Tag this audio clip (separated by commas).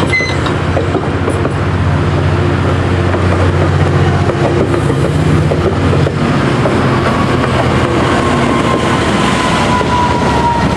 Train, Rail transport, Vehicle, Railroad car